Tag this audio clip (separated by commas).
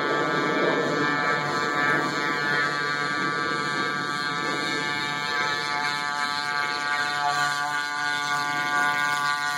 Vehicle, Boat